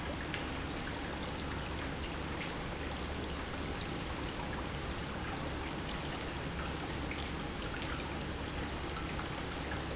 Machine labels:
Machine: pump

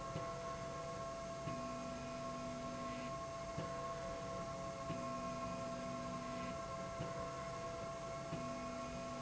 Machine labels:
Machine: slide rail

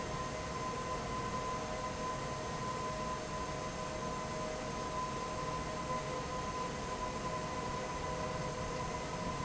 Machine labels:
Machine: fan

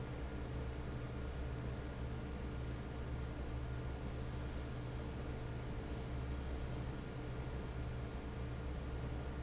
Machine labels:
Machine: fan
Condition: normal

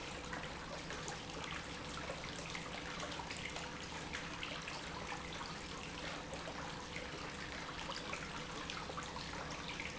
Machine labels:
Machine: pump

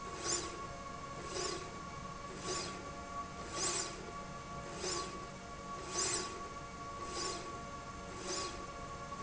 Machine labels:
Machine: slide rail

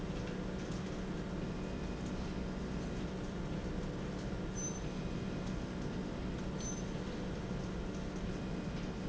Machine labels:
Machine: slide rail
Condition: normal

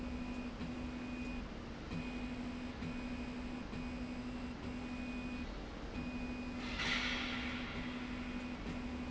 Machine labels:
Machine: slide rail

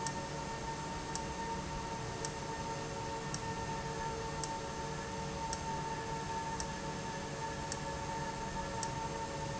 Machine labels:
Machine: valve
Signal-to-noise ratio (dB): -6 dB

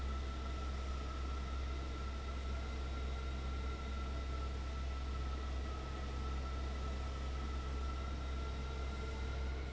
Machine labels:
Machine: fan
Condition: abnormal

